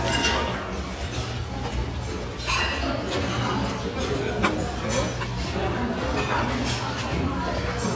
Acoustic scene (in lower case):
restaurant